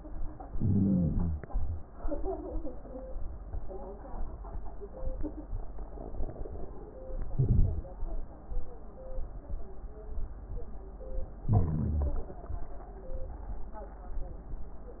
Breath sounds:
Inhalation: 0.48-1.46 s, 7.29-7.87 s, 11.49-12.27 s
Wheeze: 0.48-1.46 s, 11.49-12.27 s
Crackles: 7.29-7.87 s

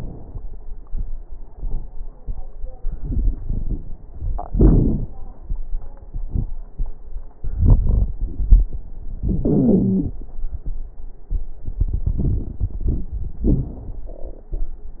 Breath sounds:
Inhalation: 2.92-4.06 s, 7.42-8.73 s, 11.62-13.18 s
Exhalation: 4.51-5.07 s, 9.27-10.19 s, 13.43-14.11 s
Wheeze: 4.51-5.07 s, 9.47-10.19 s, 13.43-13.74 s
Crackles: 2.92-4.06 s, 7.42-8.73 s, 11.62-13.18 s

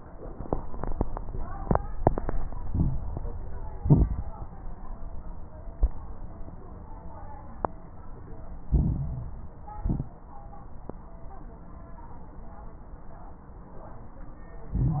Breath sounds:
Inhalation: 2.64-3.17 s, 8.66-9.59 s, 14.74-15.00 s
Exhalation: 3.76-4.29 s, 9.77-10.20 s
Crackles: 2.64-3.17 s, 3.76-4.29 s, 8.66-9.59 s, 9.77-10.20 s, 14.74-15.00 s

